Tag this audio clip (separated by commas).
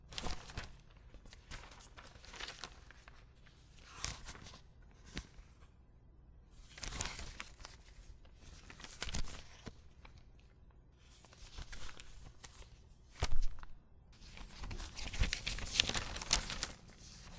crinkling